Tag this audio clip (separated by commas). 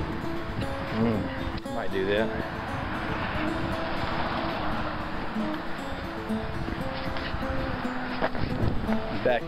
Music, Vehicle, outside, rural or natural, Speech